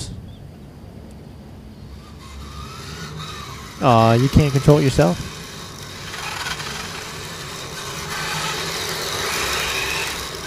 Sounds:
inside a large room or hall
speech

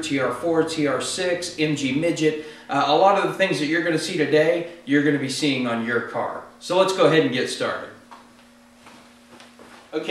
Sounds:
speech

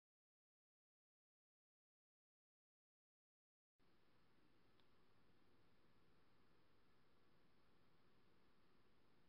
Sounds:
silence

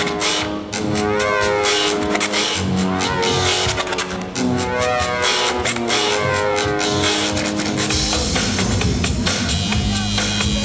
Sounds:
didgeridoo

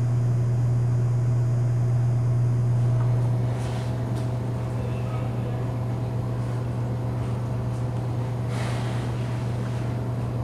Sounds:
silence

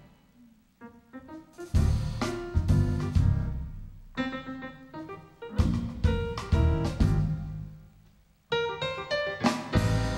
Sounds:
music

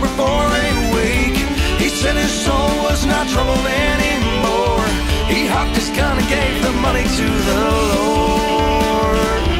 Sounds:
background music
music
blues

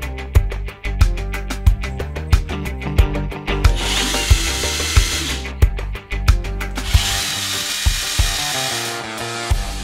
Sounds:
drill
music

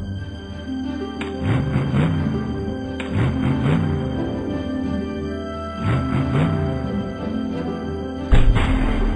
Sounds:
music
vehicle

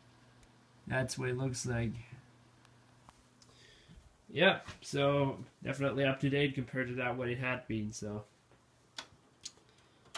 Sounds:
speech

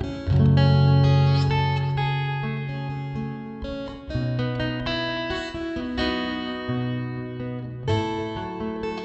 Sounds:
musical instrument
music
plucked string instrument
guitar

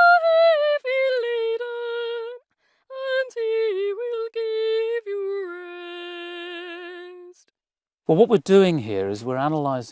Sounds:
speech

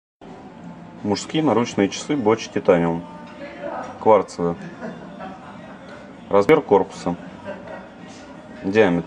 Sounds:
speech

